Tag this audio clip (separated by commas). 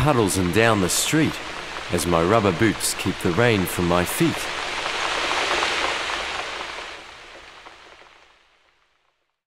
Speech